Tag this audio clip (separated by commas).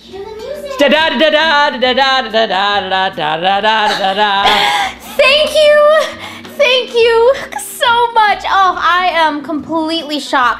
Music, Speech, Narration, Female speech